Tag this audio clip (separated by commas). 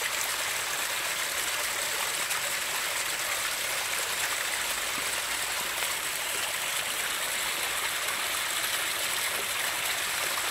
waterfall burbling